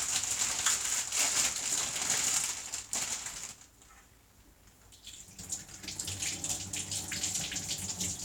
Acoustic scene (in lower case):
kitchen